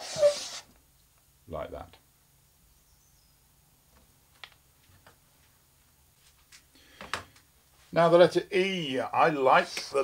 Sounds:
writing on blackboard with chalk

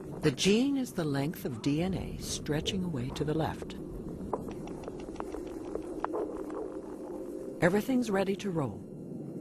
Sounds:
speech

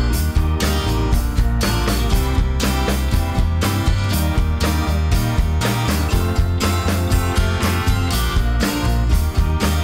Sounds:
music

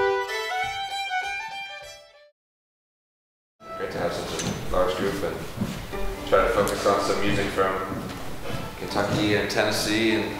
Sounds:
speech
musical instrument
music
fiddle

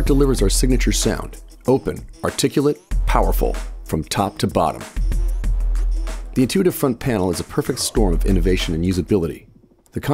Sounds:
music
speech

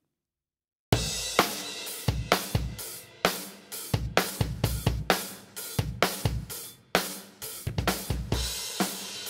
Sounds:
music
drum

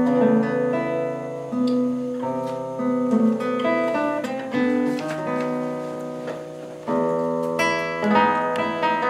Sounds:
acoustic guitar
guitar
music
strum
plucked string instrument
musical instrument

